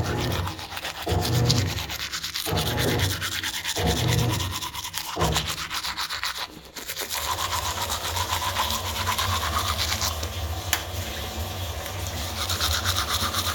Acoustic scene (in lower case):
restroom